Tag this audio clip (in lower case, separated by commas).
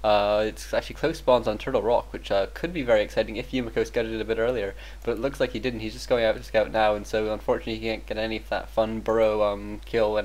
speech